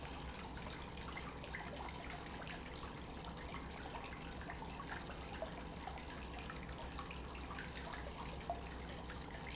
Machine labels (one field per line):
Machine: pump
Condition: normal